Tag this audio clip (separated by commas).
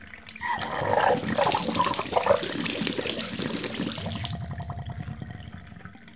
Liquid, Pour, Water, Gurgling, dribble, Sink (filling or washing), home sounds, Bathtub (filling or washing)